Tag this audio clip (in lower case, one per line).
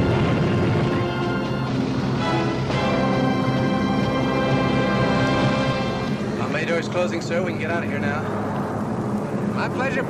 speech
music